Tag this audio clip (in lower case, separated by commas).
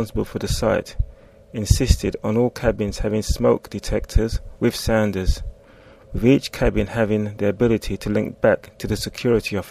speech